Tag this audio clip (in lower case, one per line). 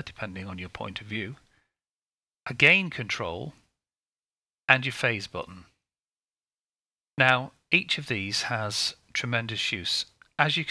inside a small room
speech